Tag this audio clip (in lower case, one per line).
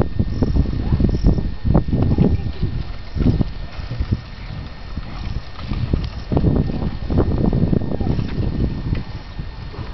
bicycle